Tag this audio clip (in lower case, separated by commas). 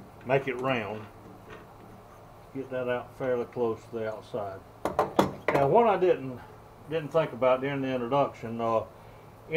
tools